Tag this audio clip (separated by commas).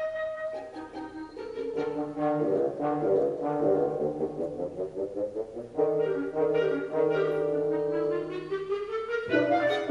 Bowed string instrument, Double bass, Musical instrument, Music, Orchestra, Classical music, Cello, Violin